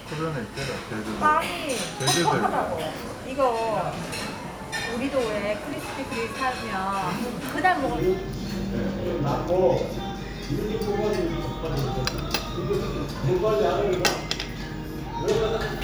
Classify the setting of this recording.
restaurant